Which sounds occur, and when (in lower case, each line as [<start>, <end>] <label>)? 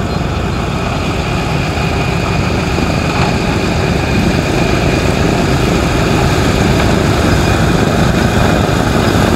[0.00, 9.35] airplane